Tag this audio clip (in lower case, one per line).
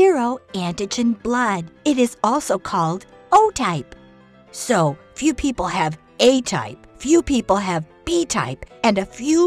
monologue
music for children